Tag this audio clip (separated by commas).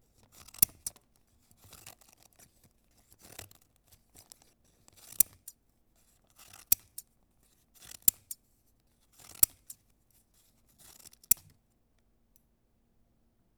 home sounds, Scissors